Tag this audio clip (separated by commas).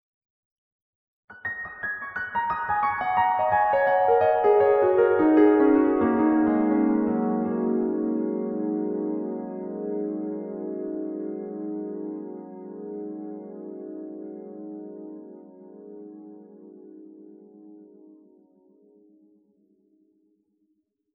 Piano, Keyboard (musical), Musical instrument, Music